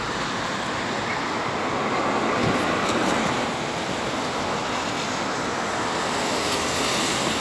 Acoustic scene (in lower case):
street